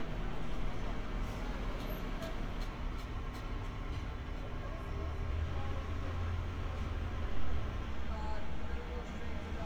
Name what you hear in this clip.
non-machinery impact, person or small group talking